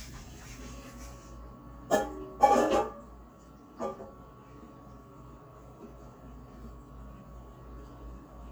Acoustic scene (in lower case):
kitchen